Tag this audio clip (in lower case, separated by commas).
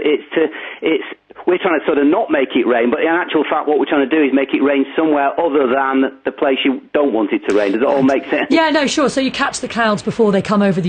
speech